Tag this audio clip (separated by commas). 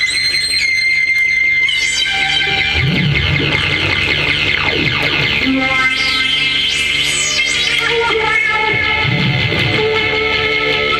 Music, Theremin